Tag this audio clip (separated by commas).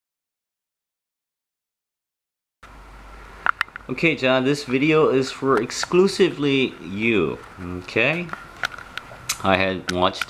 Speech